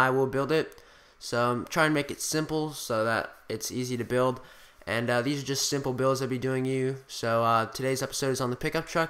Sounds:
speech

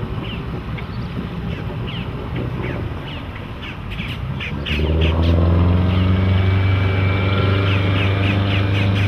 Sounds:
speedboat, speedboat acceleration, vehicle, boat

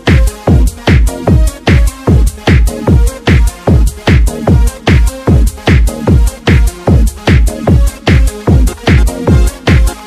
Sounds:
music, techno

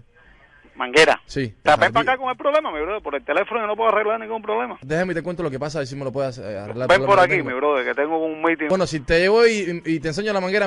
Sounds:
speech, radio

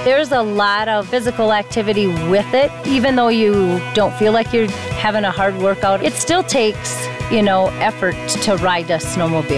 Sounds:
speech, music

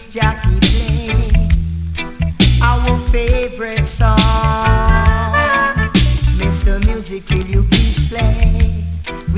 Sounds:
music, jingle (music)

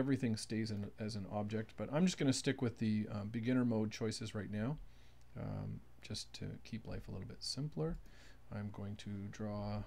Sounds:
speech

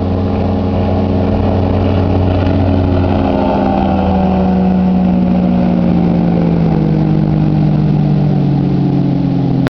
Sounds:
vehicle, motorboat, water vehicle

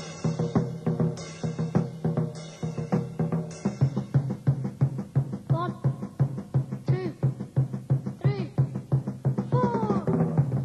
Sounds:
music, speech

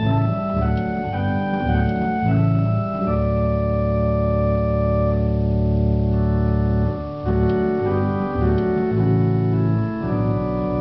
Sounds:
organ, hammond organ, playing hammond organ

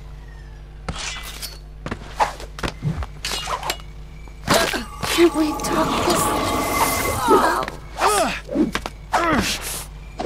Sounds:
speech

